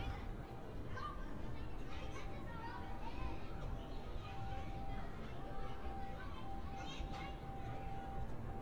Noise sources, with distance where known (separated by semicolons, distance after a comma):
person or small group shouting, far